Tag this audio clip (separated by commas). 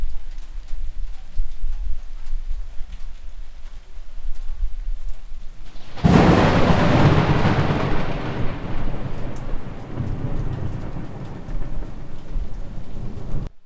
Thunder, Water, Thunderstorm, Rain